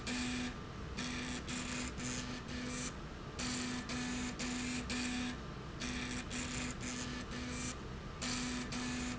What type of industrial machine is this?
slide rail